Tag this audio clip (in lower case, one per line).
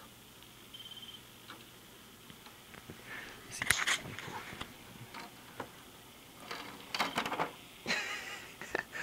speech